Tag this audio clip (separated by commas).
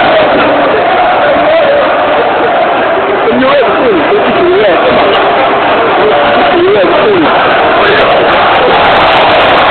Speech